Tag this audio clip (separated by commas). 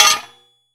Tools